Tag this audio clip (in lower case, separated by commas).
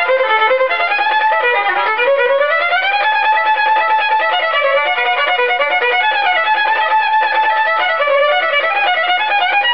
fiddle, music, musical instrument